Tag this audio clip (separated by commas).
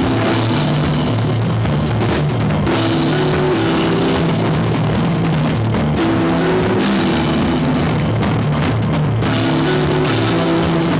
Drum kit, Percussion, Cymbal, Musical instrument, Drum, Jazz, Music, Rock music, Guitar